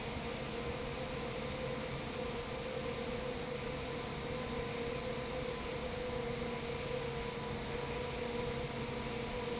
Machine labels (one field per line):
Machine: fan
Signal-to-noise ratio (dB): -6 dB